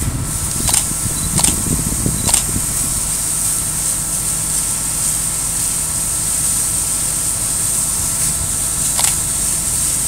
A camera taking photos